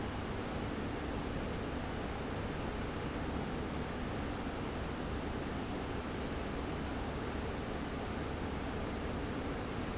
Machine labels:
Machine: fan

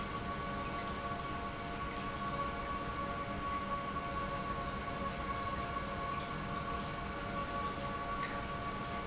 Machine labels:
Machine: pump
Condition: normal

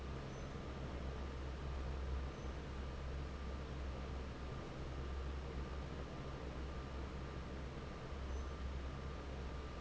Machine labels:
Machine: fan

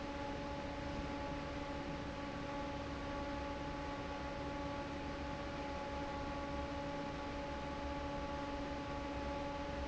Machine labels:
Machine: fan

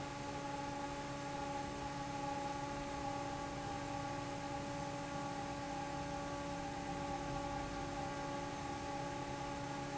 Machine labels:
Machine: fan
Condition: normal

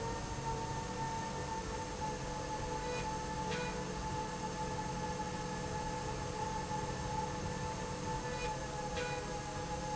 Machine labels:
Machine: slide rail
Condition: normal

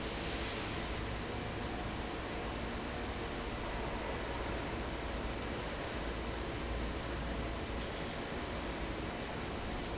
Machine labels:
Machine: fan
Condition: abnormal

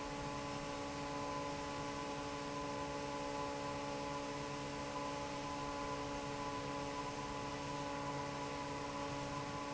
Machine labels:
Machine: fan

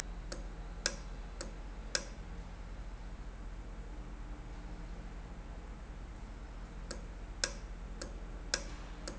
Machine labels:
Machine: valve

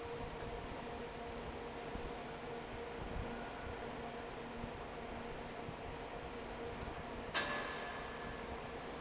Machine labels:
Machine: fan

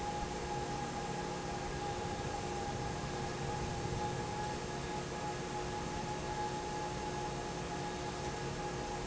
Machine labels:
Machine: fan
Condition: normal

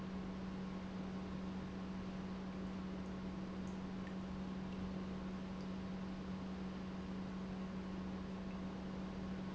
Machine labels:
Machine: pump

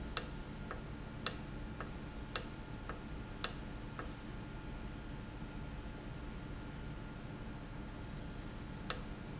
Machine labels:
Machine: valve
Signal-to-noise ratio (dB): 0 dB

